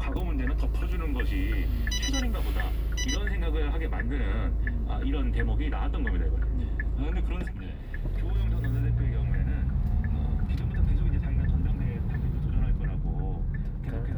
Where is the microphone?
in a car